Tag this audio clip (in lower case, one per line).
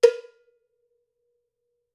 cowbell
percussion
bell
music
musical instrument